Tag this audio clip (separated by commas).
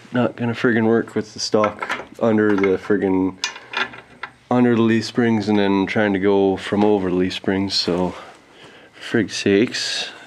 Speech, inside a small room